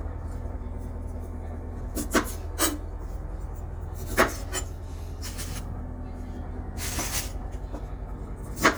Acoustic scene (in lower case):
kitchen